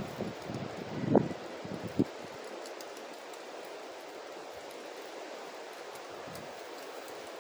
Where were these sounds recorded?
in a residential area